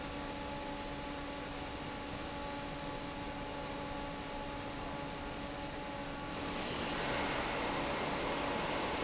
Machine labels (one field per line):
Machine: fan